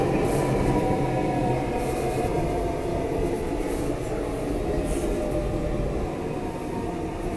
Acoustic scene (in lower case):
subway station